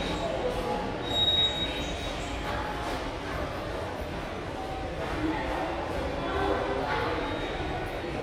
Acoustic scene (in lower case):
subway station